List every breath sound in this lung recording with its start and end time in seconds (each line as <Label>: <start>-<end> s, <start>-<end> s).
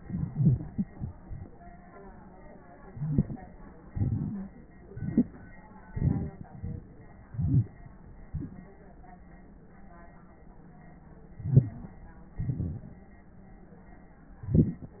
Inhalation: 2.88-3.53 s, 4.91-5.55 s, 7.26-7.77 s, 11.35-11.98 s
Exhalation: 3.90-4.58 s, 5.94-6.99 s, 8.33-8.81 s, 12.41-13.01 s
Wheeze: 4.31-4.49 s, 7.32-7.67 s, 11.38-11.98 s
Rhonchi: 2.95-3.22 s
Crackles: 2.88-3.53 s, 3.93-4.54 s